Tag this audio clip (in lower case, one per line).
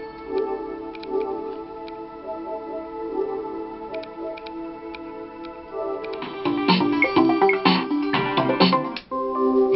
music
sound effect